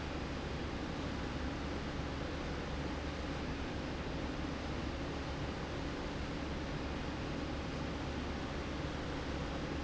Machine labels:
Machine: slide rail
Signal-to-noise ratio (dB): -6 dB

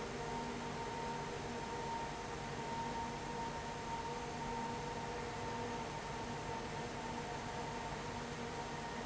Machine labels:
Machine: fan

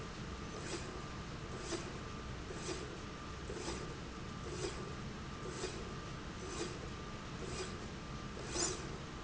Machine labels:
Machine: slide rail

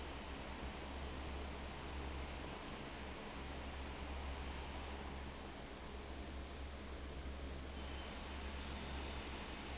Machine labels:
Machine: fan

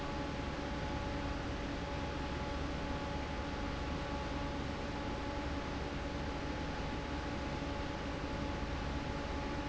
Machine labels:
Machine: fan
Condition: normal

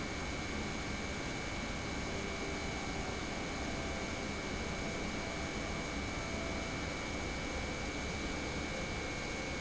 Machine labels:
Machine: pump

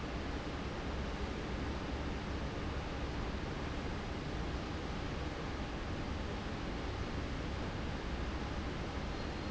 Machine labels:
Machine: fan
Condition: abnormal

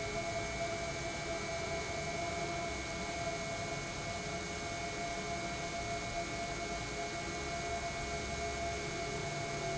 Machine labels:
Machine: pump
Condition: normal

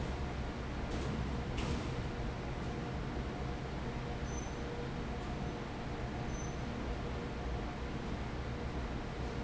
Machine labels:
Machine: fan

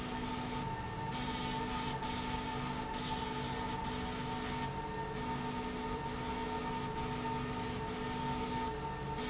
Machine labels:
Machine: slide rail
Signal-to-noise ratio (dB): -6 dB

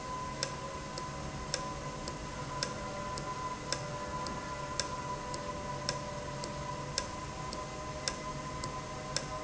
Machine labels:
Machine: valve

